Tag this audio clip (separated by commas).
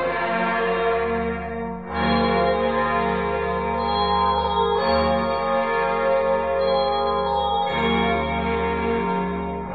Tender music, Music